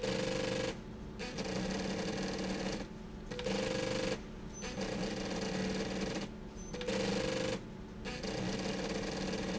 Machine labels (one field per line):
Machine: slide rail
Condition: abnormal